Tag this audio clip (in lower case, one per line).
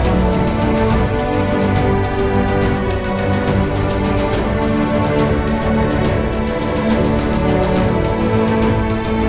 music